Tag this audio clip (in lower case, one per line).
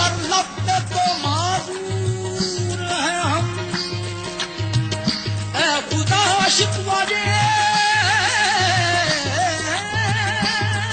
music